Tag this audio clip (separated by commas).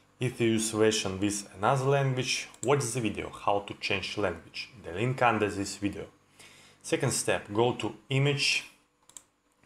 Speech